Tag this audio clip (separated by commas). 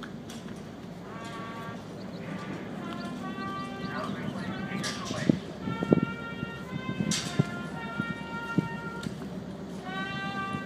Speech, Music